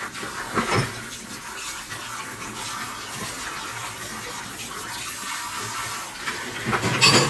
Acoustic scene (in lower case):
kitchen